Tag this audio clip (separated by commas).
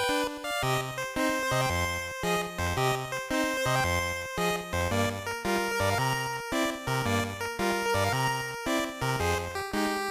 Music, Video game music